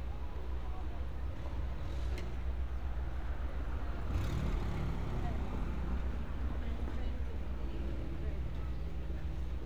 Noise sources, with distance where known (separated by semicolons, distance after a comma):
person or small group talking